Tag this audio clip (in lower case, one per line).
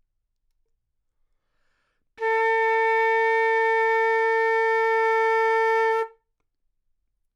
musical instrument
woodwind instrument
music